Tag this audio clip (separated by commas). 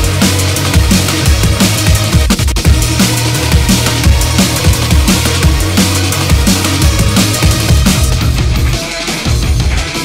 Drum and bass, Music, Electronic music, Angry music